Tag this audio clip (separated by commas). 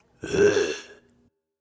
Human voice